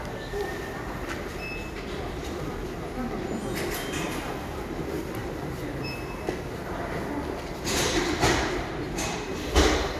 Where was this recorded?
in a crowded indoor space